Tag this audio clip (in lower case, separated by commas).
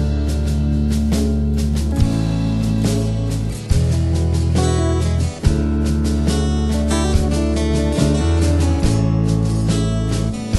music